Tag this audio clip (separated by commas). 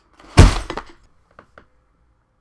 Thump